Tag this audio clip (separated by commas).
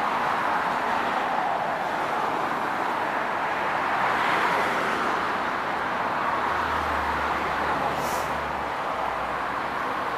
Vehicle